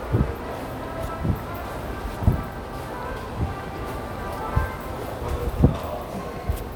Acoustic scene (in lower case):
subway station